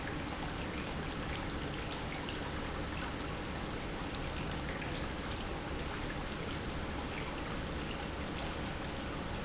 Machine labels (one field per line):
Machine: pump